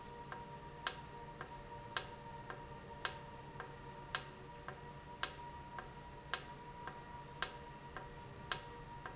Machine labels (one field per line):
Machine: valve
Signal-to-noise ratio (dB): 6 dB